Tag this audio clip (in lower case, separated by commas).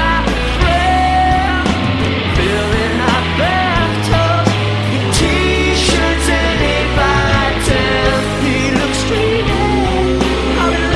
music